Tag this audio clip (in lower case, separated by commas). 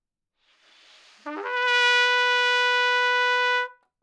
musical instrument, brass instrument, trumpet, music